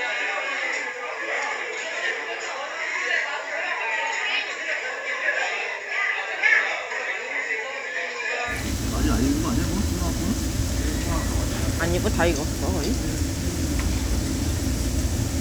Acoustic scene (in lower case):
crowded indoor space